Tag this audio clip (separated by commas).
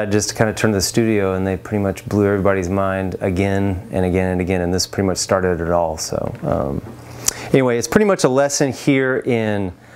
Speech